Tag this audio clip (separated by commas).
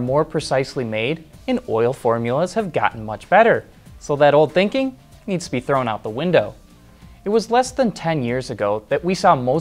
Music, Speech